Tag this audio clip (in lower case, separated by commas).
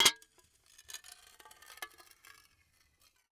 dishes, pots and pans, glass, domestic sounds